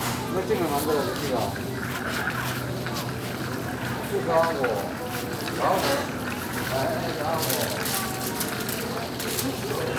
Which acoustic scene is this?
crowded indoor space